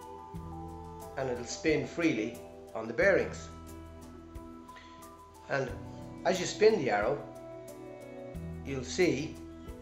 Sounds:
Music, Speech

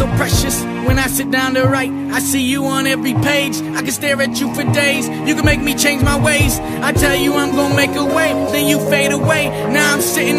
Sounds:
Music

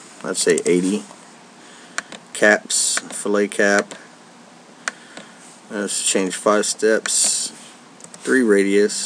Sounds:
Speech

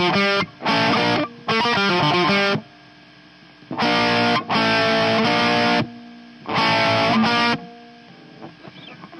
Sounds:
Musical instrument, Strum, Plucked string instrument, Electric guitar, Guitar, Music

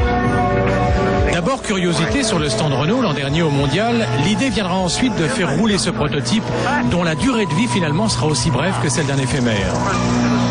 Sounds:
Speech, Music

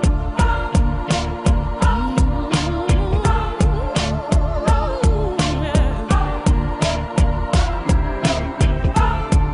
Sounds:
Music

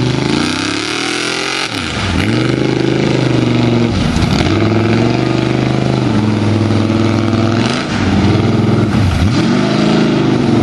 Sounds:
Truck, Vehicle

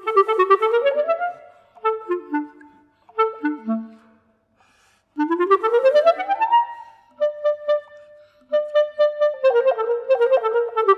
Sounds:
playing clarinet

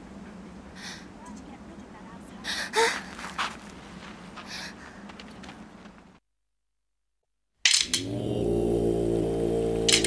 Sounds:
Speech

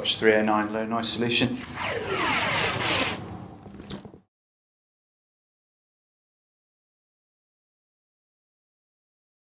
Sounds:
Speech

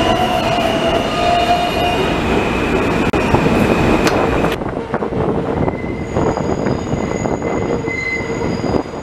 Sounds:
subway

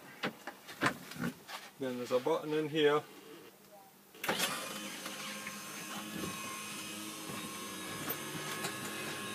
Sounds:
Speech

